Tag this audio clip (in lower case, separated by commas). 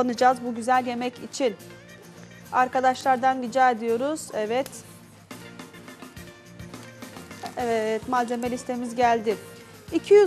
speech, music